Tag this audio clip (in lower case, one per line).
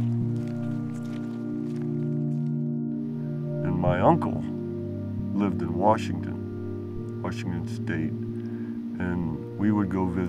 speech
music